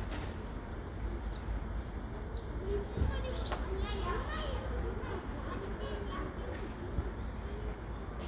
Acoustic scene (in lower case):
residential area